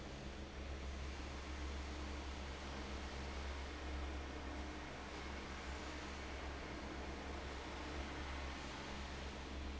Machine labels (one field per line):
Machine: fan